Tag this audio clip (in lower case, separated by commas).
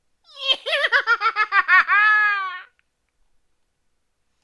laughter, human voice